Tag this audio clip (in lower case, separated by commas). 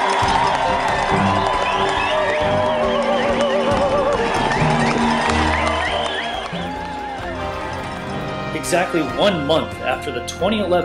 speech, music